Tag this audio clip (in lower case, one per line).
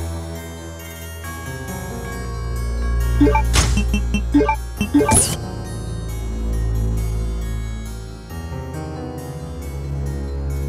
harpsichord